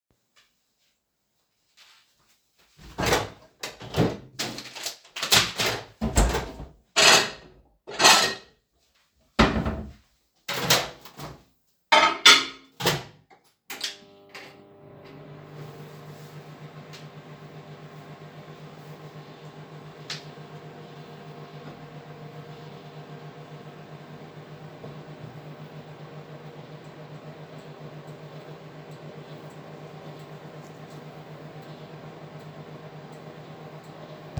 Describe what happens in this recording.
I walked down the hallway to the bathroom and opened the door. I turned on the light and opened a drawer to take out my electric toothbrush and closed it again. Then I turned on the water, stopped it, and started brushing my teeth.